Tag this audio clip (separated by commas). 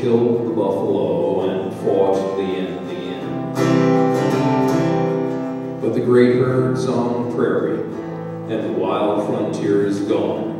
Music, Speech